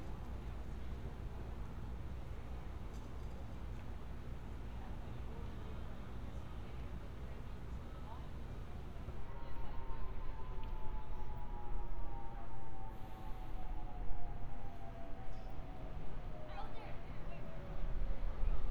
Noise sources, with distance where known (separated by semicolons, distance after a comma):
unidentified human voice